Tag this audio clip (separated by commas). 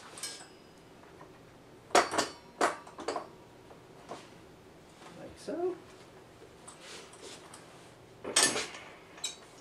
Cutlery